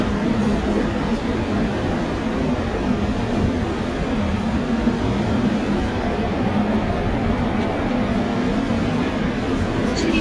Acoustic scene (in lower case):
subway train